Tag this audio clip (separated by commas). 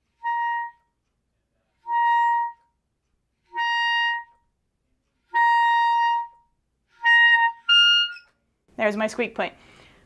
playing clarinet